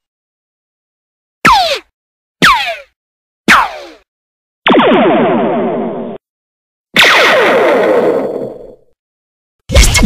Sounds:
Sound effect

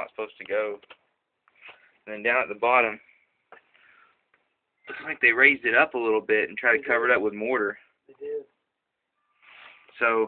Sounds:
Speech

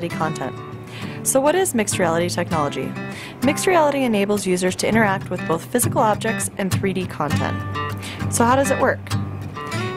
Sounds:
Music, Speech

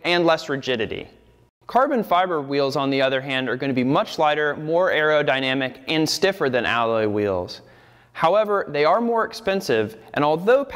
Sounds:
Speech

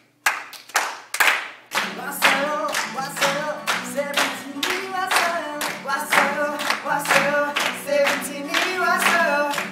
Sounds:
Music

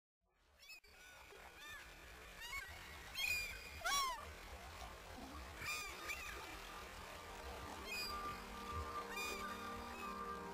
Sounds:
outside, rural or natural, Goose

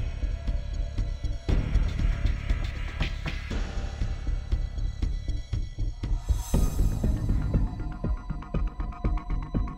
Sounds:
Music

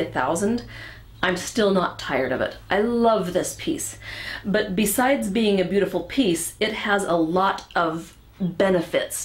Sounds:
Speech

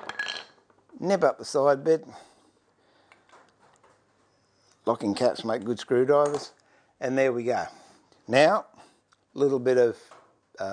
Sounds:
Tools, Wood

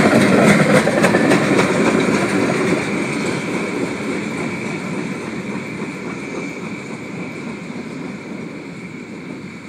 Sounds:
Vehicle, Train, train wagon

